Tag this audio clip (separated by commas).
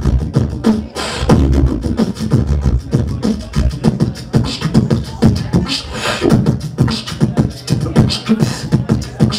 Speech